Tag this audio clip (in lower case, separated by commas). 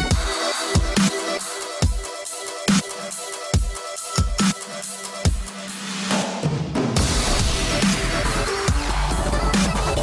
music, dubstep